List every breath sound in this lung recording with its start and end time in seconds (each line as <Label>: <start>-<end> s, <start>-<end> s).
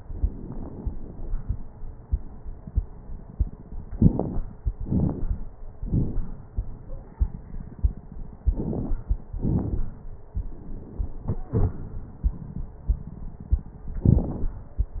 Inhalation: 3.91-4.43 s, 8.48-9.00 s
Exhalation: 4.88-5.41 s, 9.44-9.96 s
Crackles: 3.91-4.43 s, 4.88-5.41 s, 8.48-9.00 s, 9.44-9.96 s